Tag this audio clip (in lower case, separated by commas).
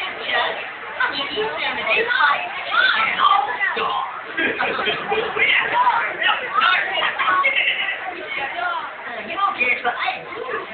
speech